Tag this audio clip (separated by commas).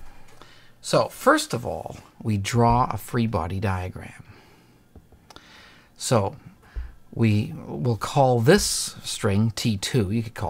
Speech